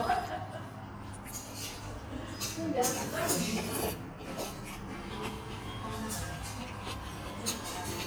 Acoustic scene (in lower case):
restaurant